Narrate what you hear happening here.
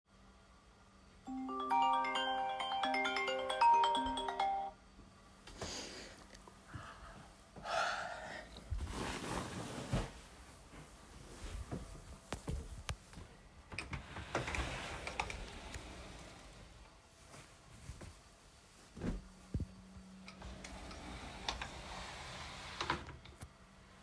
Alarm on the phone was ringing, I turned it off, and yawned. Then I moved the bedsheets, opened the wardrobe, took out clothes, and closed it.